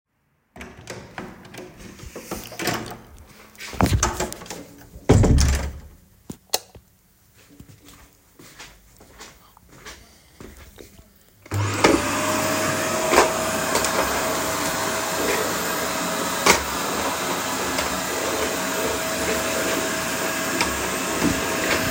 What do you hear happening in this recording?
I plugged the vaccum cleaner beforerhand and went to get one the missing heads used for the corners , the recording is basically me opening the door switching the light and waking to turn on the vaccume cleaner